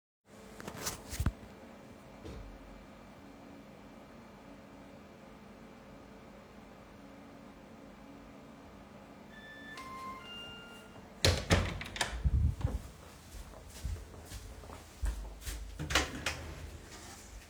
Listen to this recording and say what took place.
The doorbell rang, so I opened the door to the hallway and then the apartment door.